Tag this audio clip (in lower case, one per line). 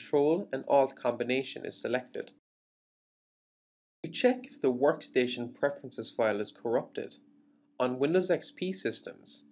speech